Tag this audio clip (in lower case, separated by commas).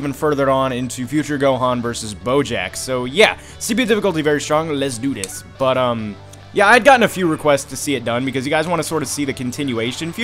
music, speech